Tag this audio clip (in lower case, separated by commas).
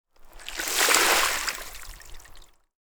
liquid, splash, water